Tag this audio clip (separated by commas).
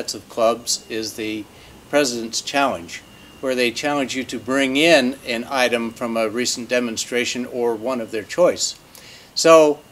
Speech